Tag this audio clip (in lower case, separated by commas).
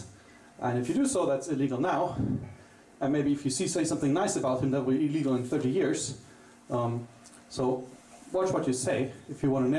speech